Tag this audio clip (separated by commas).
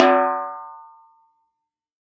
Drum, Snare drum, Percussion, Musical instrument, Music